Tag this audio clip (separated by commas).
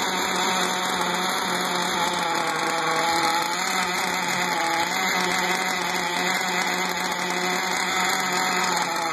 Engine, Idling